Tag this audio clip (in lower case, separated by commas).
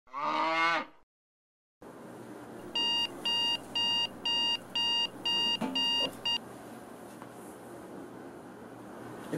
alarm clock